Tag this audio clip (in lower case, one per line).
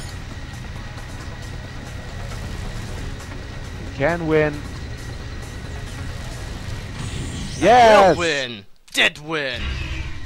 speech
music